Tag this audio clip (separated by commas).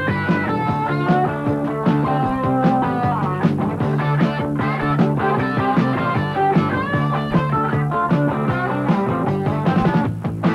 Music